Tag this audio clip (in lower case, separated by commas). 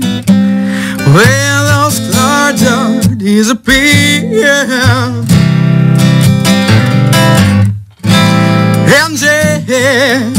music